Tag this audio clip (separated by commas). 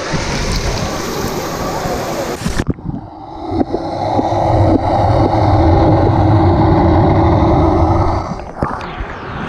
underwater bubbling